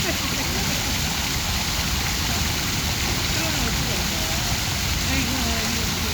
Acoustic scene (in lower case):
park